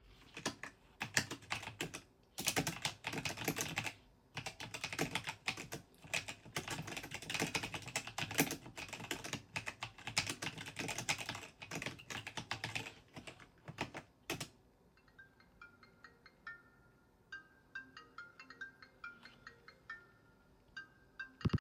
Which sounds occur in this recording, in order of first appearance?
keyboard typing, phone ringing